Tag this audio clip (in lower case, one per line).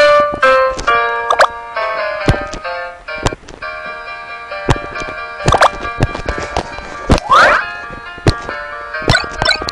music